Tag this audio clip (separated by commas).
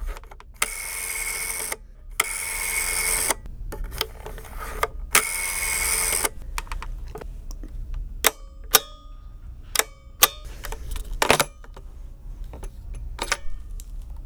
Telephone, Alarm